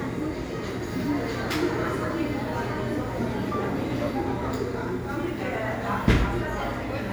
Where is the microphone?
in a cafe